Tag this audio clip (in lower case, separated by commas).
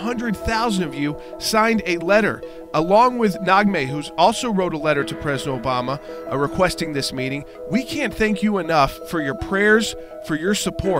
speech, music